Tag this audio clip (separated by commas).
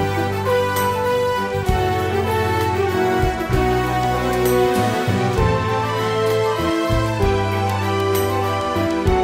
Music